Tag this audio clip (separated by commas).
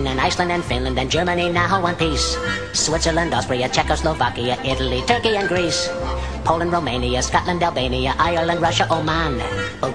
Music, Male singing